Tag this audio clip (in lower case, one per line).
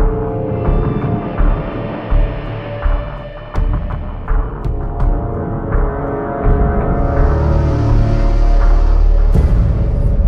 music